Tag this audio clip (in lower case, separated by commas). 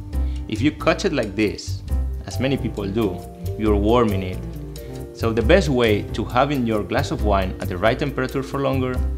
music, speech